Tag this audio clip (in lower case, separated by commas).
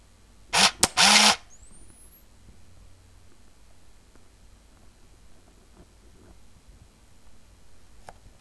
mechanisms, camera